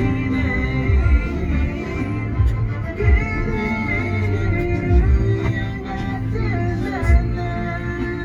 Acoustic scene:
car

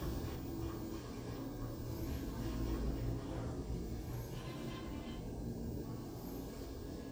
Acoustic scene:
elevator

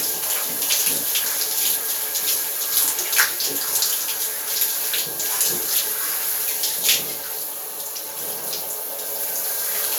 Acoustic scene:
restroom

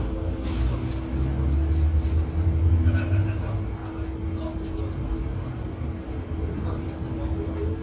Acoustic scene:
residential area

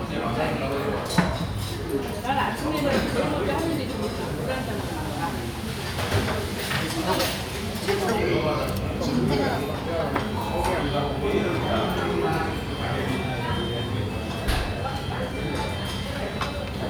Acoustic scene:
restaurant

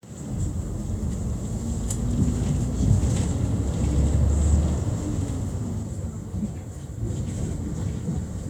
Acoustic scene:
bus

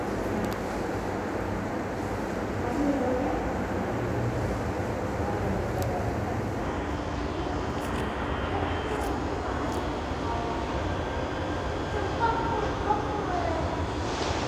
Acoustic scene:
subway station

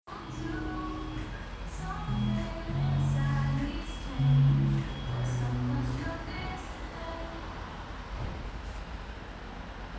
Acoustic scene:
cafe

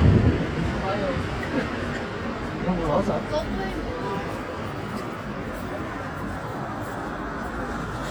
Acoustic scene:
street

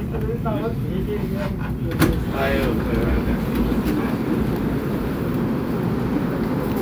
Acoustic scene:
subway train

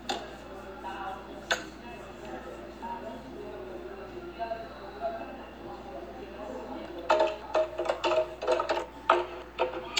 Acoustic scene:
cafe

